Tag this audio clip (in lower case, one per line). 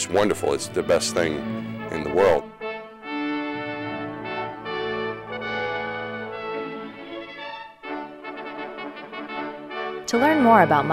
music
speech
brass instrument